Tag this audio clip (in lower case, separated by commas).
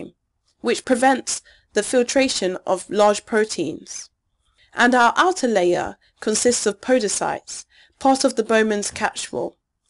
speech